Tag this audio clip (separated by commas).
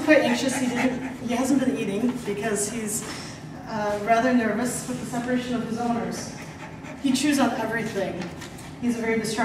Animal, Dog, pets, Speech